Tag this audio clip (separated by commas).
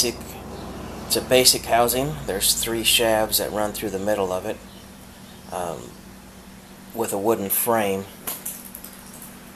Speech